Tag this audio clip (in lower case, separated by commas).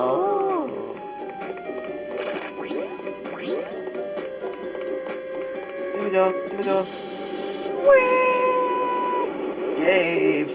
music, speech